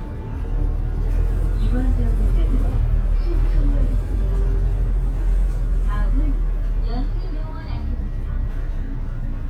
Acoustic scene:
bus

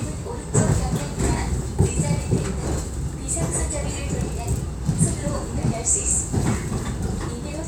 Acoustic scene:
subway train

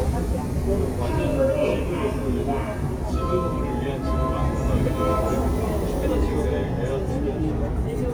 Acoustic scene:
subway station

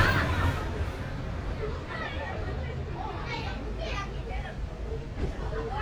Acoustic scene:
residential area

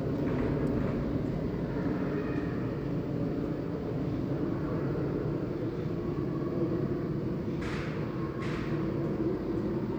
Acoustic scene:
residential area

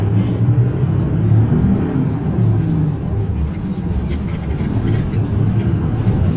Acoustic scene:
bus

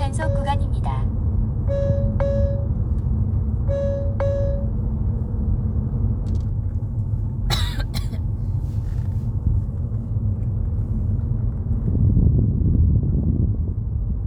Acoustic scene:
car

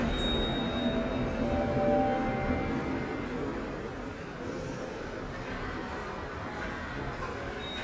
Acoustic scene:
subway station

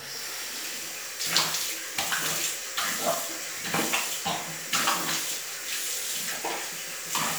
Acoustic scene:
restroom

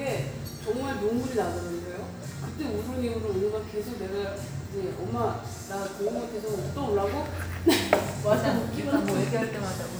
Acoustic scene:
cafe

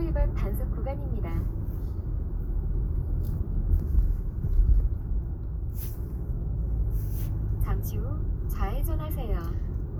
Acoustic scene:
car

